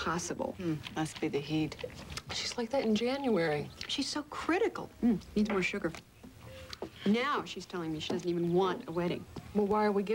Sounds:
Speech

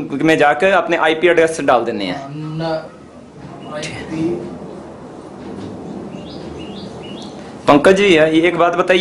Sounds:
inside a small room, Speech

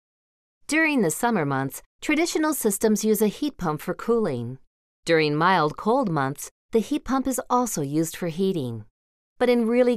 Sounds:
Speech

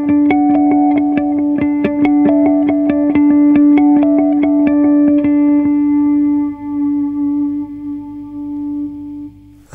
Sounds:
Music, Echo

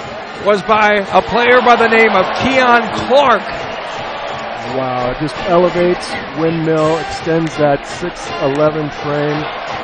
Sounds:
Music, Speech

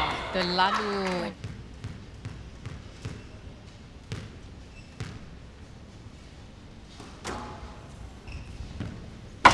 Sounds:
playing squash

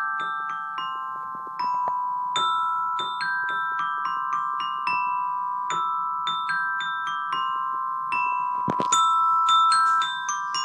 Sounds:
playing vibraphone

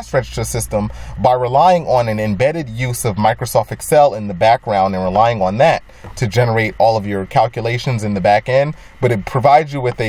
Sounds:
Speech

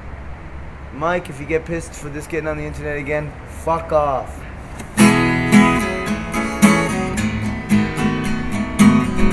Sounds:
Music, Speech

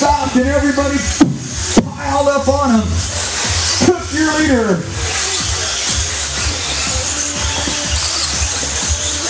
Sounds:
Music, Speech

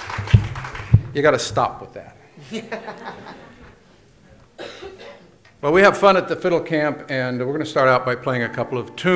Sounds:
Music, Musical instrument, Speech

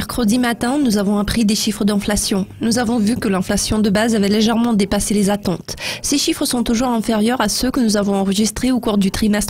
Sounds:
Speech

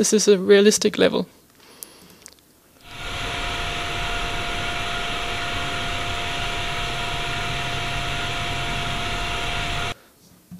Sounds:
Speech

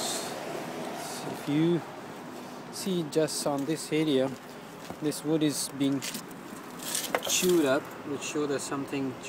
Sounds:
Speech

